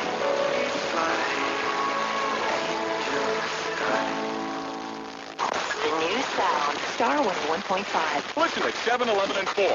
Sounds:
radio
speech
music

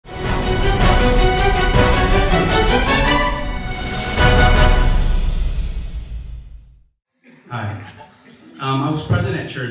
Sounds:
speech

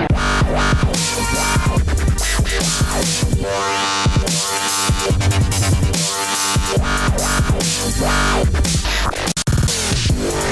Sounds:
electronic music
dubstep
music

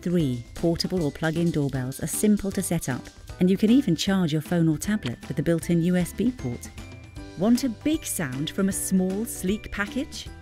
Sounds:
music
speech

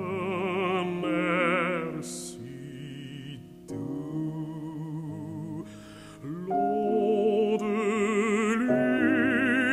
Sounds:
music

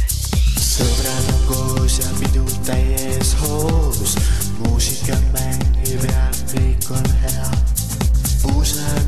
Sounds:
music

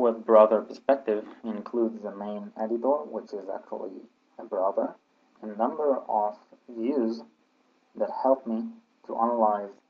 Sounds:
speech

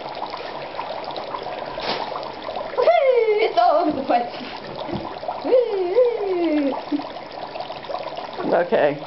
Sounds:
speech

